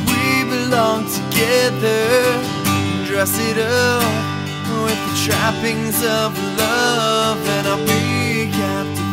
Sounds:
Music

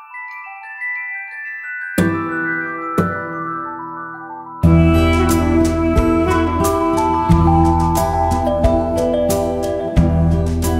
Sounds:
Music, outside, rural or natural

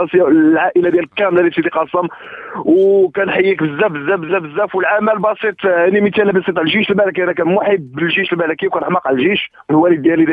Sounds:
Speech

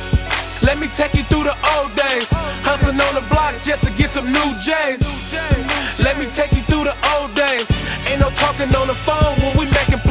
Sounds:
Pop music, Music

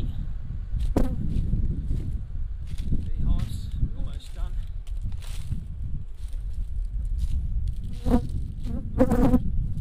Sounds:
Speech

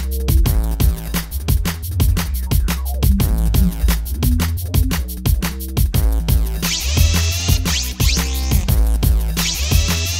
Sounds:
Sampler, Music

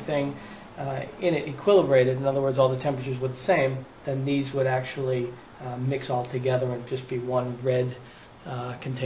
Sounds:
inside a small room, Speech

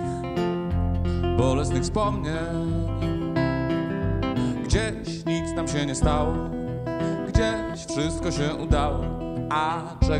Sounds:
Tender music, Music

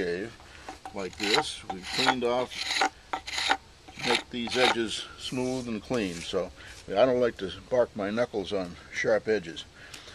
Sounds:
Tools, Speech, Wood

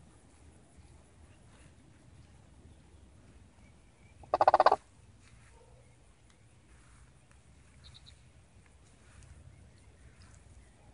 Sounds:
bird squawking

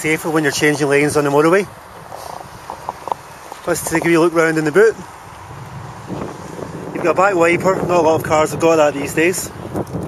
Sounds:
Speech

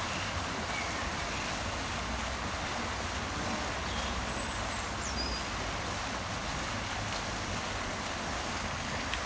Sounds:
Bird, outside, rural or natural, Goose

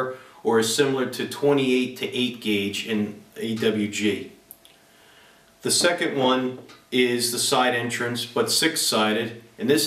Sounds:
Speech

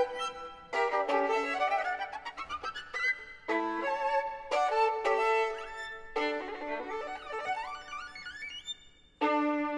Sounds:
Violin, Music, Musical instrument

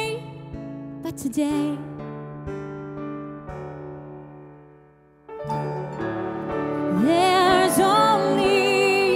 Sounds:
Singing

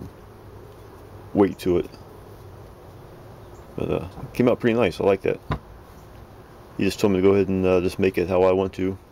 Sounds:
Speech

